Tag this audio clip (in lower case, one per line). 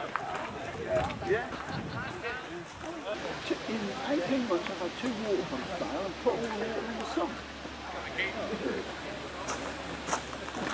speech